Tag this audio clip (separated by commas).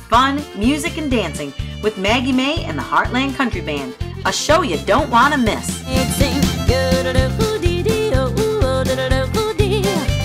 Music, Speech